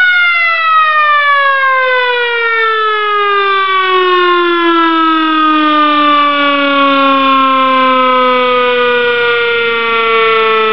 Sirens are making noise